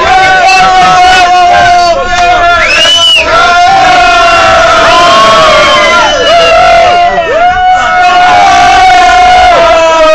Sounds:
vehicle

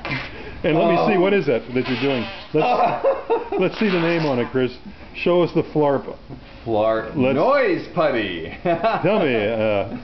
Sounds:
speech

